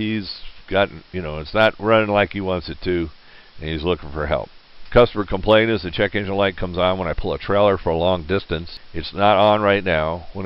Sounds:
speech

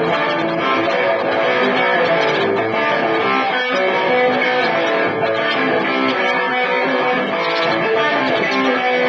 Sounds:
music
electric guitar
guitar
plucked string instrument
musical instrument
strum

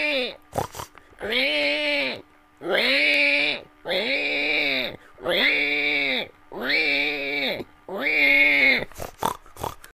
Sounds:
oink

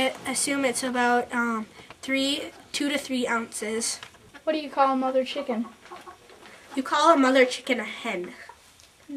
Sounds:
rooster
speech

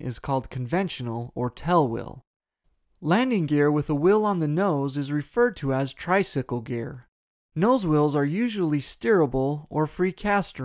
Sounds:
speech

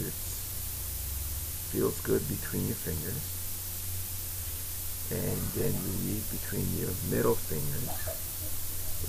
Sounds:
speech

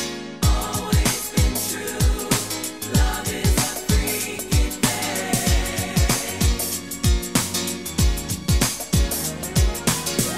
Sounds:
funk
music
singing

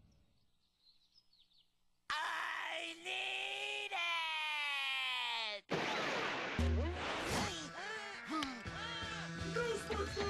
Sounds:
speech
music

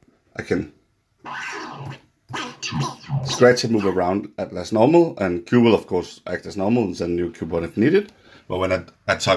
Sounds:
disc scratching

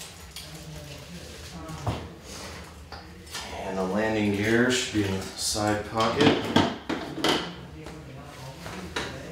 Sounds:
speech

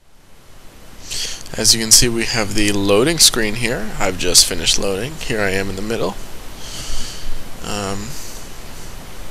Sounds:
speech

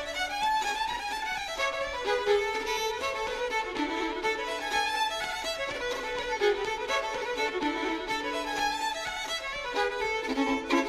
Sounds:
traditional music
fiddle
musical instrument
music

